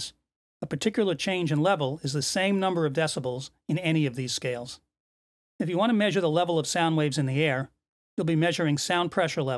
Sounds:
speech

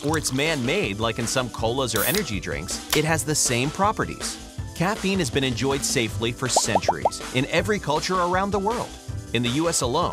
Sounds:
speech, music

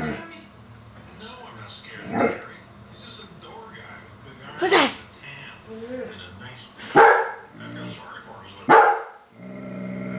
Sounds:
bark, animal, domestic animals, speech, dog

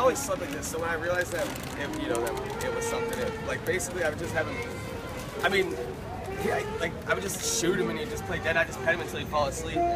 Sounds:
speech, music

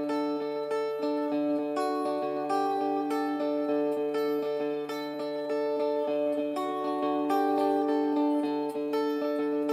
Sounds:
music, ukulele

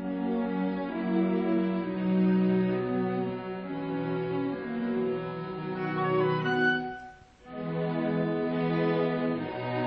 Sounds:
orchestra, music

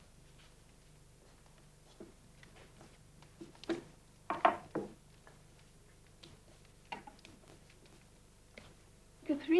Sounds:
speech, inside a small room

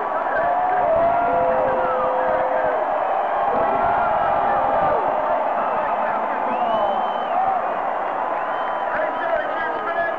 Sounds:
crowd, speech

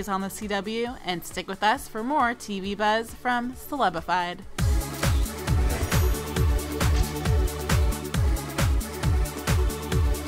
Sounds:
speech, music

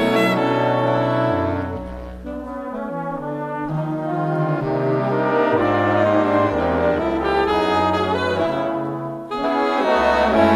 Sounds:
music, brass instrument, trombone

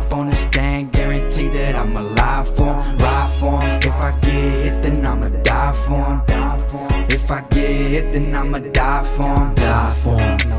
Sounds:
rhythm and blues, music

